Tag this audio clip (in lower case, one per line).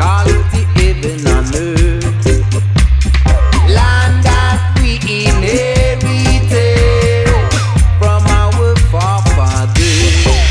music